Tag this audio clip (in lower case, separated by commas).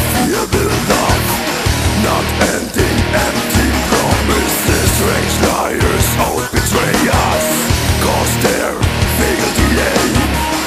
angry music, music